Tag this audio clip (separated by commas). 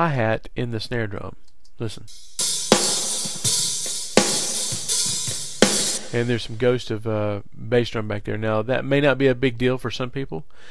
Music, Speech